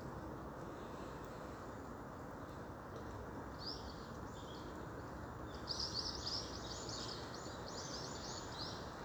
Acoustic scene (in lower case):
park